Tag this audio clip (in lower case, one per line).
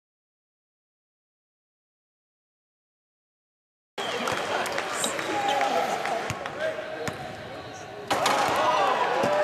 speech
basketball bounce